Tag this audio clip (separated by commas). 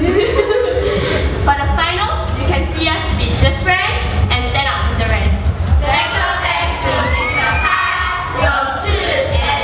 Music, Speech